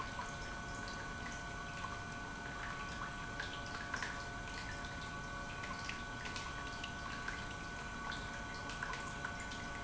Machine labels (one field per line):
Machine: pump